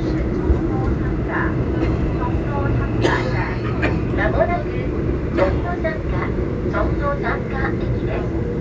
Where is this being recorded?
on a subway train